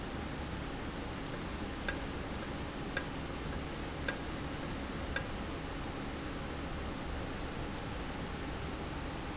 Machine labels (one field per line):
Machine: valve